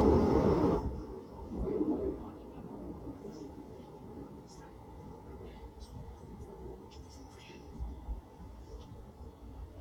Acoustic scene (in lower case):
subway train